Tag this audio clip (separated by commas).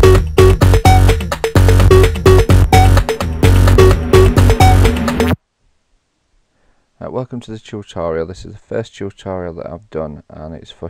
Sampler